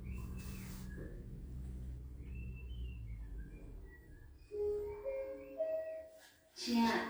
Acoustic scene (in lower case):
elevator